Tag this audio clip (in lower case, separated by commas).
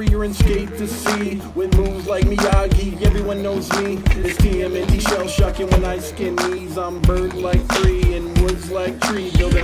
music